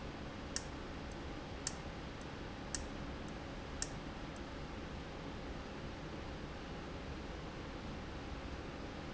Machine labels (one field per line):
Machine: valve